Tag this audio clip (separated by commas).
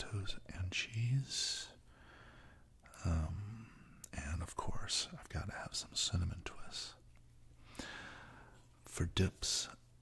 Speech